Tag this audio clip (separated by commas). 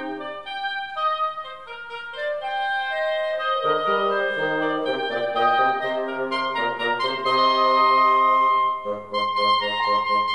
playing oboe